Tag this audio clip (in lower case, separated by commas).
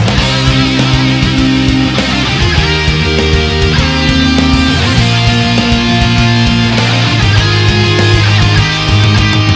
playing electric guitar, guitar, plucked string instrument, electric guitar, musical instrument, music